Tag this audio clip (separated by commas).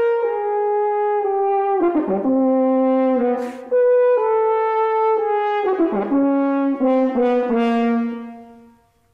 Music, French horn